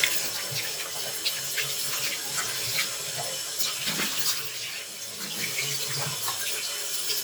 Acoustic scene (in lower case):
restroom